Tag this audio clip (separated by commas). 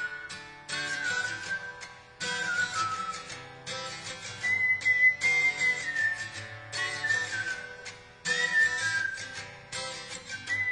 Strum, Music, Guitar, Musical instrument, Acoustic guitar, Plucked string instrument